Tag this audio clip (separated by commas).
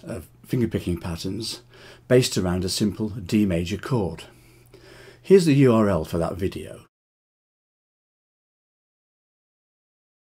Speech